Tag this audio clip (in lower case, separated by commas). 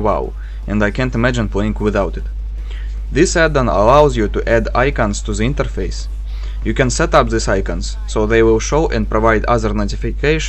speech